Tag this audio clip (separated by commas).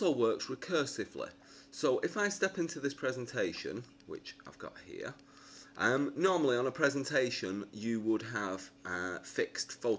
Speech